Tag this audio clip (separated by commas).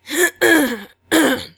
Human voice, Respiratory sounds, Cough